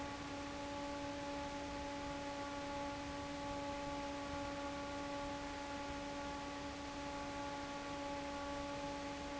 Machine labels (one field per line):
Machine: fan